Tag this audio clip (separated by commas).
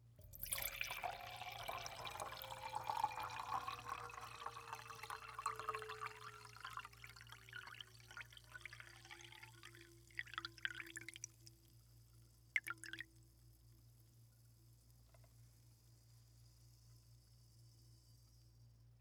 Liquid